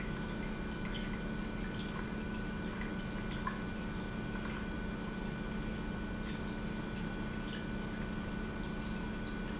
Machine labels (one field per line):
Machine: pump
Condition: normal